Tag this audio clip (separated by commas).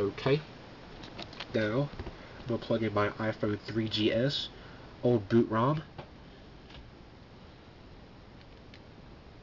Speech, inside a small room